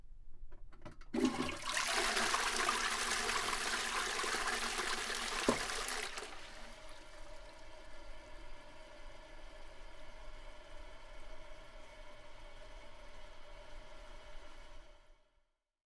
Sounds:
home sounds
toilet flush

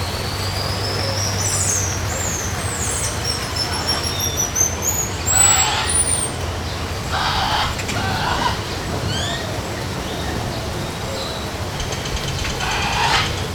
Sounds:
water

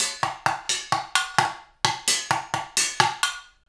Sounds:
drum kit
percussion
musical instrument
music

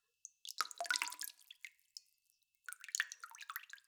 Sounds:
liquid
pour
drip
water
rain
dribble
raindrop

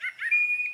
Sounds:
bird
animal
wild animals

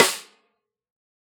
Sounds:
musical instrument
snare drum
music
percussion
drum

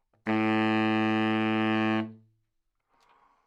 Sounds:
music
wind instrument
musical instrument

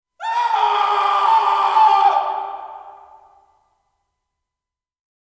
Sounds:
screaming
human voice

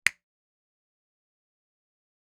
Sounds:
finger snapping
hands

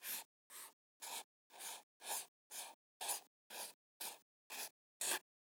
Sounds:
writing
home sounds

